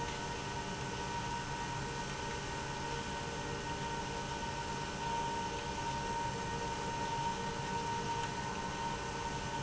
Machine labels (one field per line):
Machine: pump